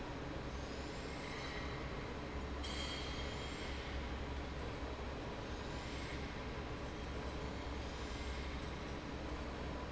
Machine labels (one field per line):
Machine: fan